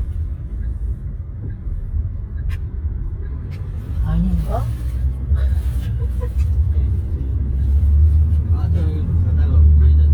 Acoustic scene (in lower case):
car